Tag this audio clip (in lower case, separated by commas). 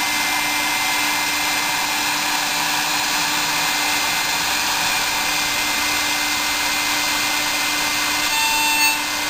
drill